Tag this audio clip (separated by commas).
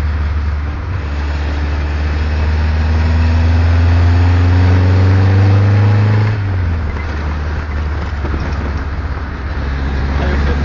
Car, Motor vehicle (road), Vehicle